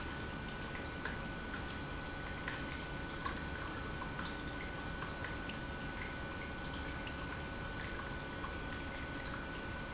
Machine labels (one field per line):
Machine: pump